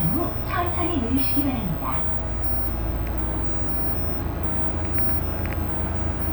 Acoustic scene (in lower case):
bus